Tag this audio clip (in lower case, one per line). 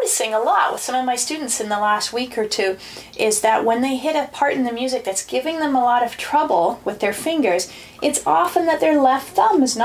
speech